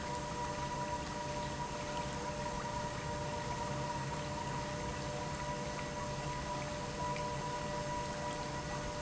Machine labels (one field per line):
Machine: pump